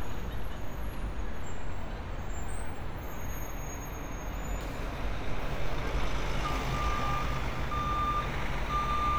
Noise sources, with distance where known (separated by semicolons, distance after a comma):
large-sounding engine, near; reverse beeper, near